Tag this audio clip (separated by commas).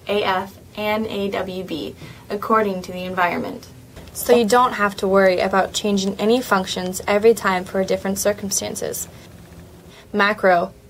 Speech